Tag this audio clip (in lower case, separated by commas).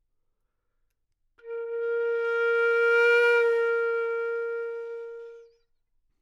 musical instrument, woodwind instrument, music